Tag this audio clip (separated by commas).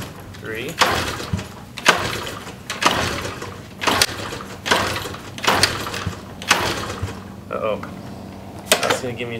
Speech, Vehicle, outside, urban or man-made, Motorcycle